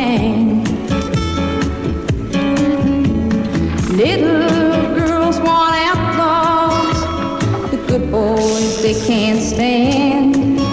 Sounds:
Music

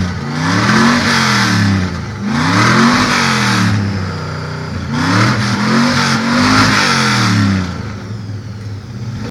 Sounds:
Accelerating, Car, Vehicle

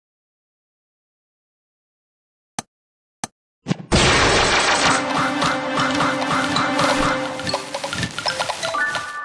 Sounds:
Speech, Music, Silence

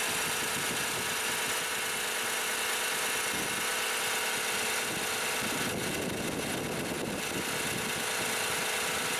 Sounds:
Engine

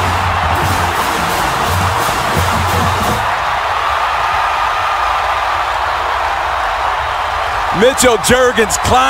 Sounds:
Speech, Music

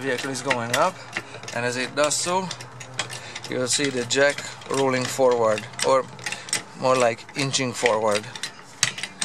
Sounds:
Speech

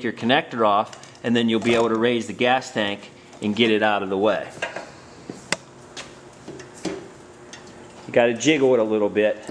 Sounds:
Speech, inside a large room or hall

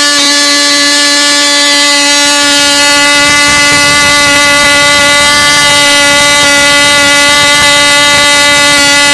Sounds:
Engine

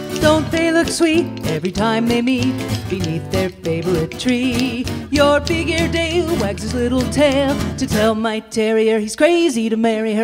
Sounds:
Music

